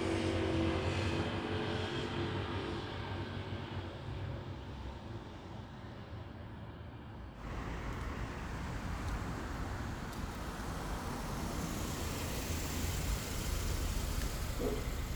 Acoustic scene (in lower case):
residential area